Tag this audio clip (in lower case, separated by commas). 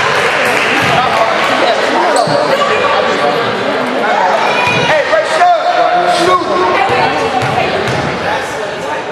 basketball bounce, inside a large room or hall, speech